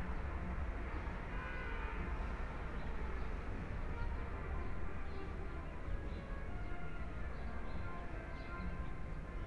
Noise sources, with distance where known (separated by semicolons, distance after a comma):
car horn; music from a fixed source, far